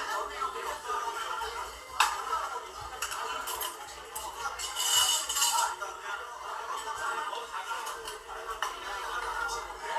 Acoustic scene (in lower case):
crowded indoor space